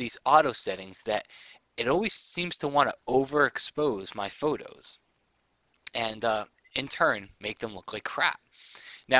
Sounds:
Speech

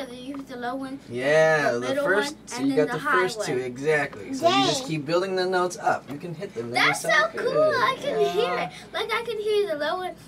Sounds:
Speech

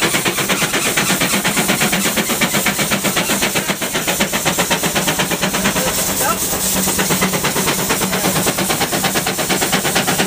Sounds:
Speech, Vehicle

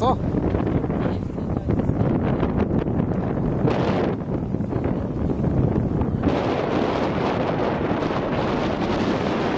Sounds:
Boat, Vehicle, Speech

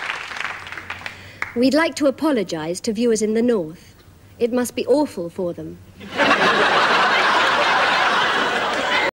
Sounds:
Speech

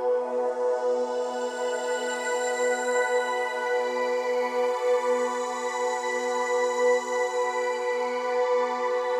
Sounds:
Music

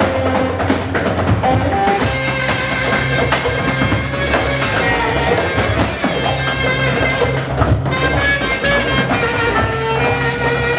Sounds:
tap dancing

